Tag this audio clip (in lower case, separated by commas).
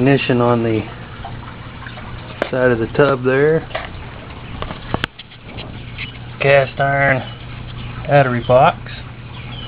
engine, speech